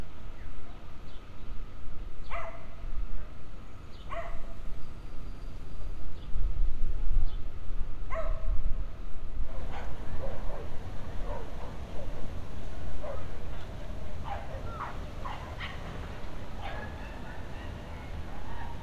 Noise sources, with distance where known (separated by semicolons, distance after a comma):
dog barking or whining